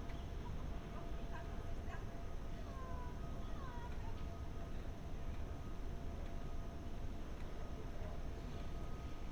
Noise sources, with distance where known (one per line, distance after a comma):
person or small group talking, far